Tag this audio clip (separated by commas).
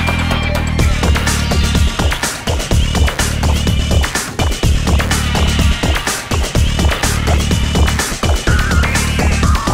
Funk, Music